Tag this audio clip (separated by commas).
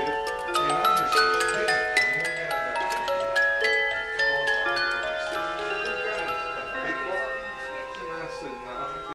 Music, Tick-tock, Speech